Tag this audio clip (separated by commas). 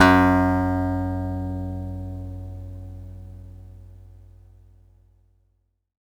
Guitar, Acoustic guitar, Musical instrument, Plucked string instrument, Music